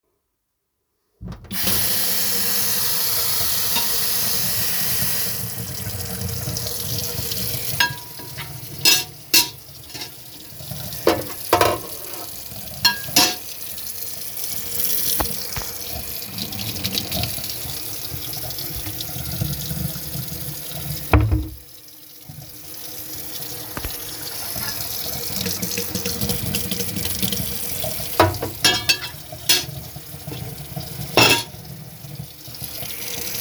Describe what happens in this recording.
I opened the tap and moved cutlery and dishes in the kitchen. The sound of running water overlaps with the sound of handling dishes and cutlery.